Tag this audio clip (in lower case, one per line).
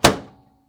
domestic sounds
microwave oven